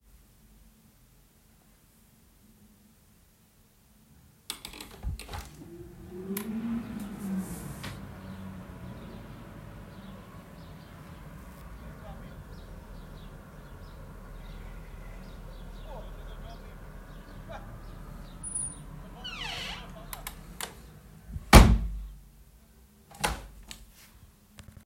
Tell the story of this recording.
I walked to the bedroom window to let some fresh air in and opened it wide.